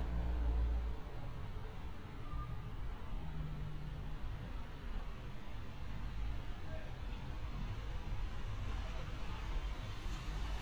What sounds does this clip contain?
engine of unclear size, unidentified human voice